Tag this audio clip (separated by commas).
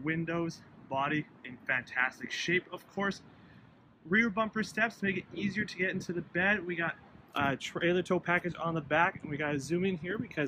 Speech